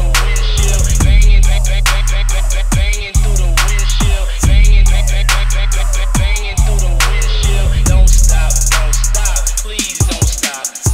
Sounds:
Music

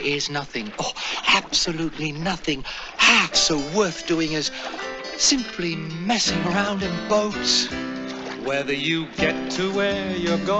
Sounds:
Speech, Music

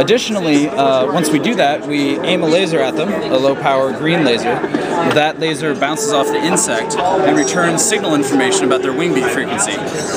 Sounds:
Speech

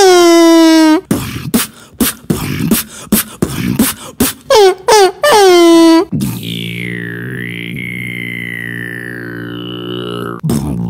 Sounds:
beat boxing

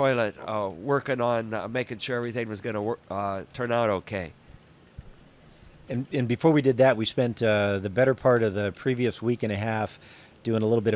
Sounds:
Speech

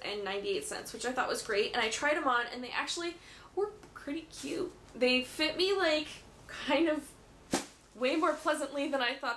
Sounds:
Speech, inside a small room

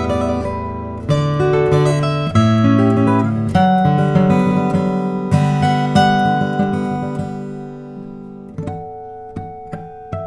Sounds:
Acoustic guitar, Guitar, Strum, Musical instrument, Plucked string instrument, Music

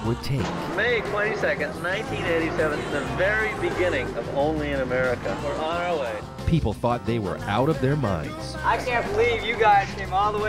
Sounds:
Speech, Music

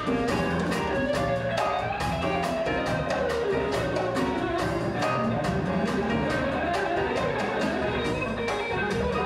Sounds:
Music, Guitar, Plucked string instrument, Acoustic guitar, Musical instrument

